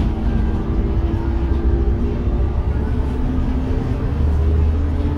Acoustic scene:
bus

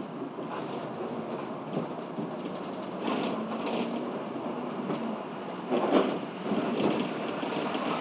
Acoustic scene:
bus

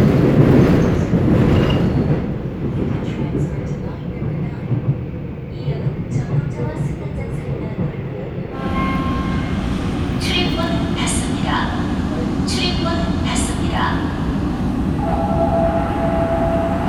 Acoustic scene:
subway train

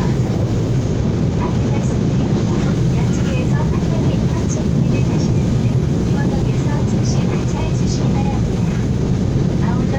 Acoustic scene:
subway train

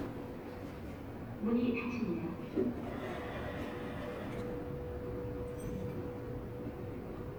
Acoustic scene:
elevator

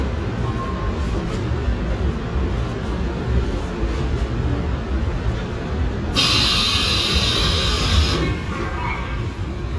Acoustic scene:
subway train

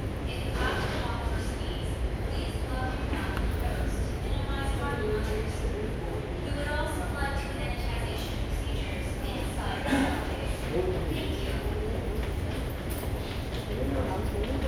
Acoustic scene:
subway station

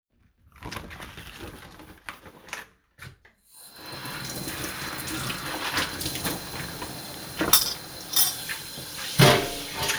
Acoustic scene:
kitchen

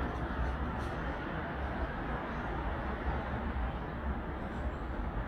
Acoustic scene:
street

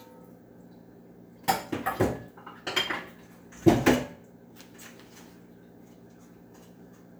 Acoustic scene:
kitchen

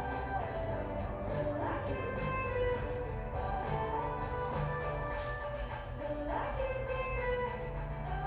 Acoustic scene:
cafe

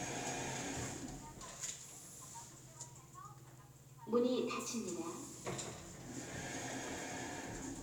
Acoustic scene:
elevator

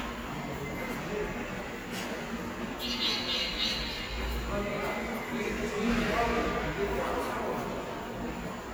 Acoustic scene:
subway station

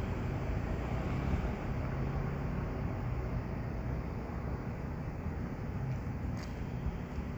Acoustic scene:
street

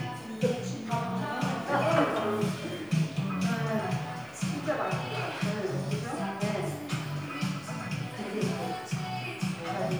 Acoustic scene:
crowded indoor space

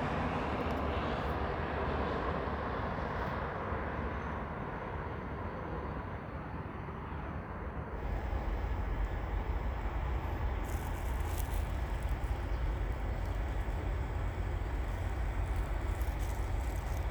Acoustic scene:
street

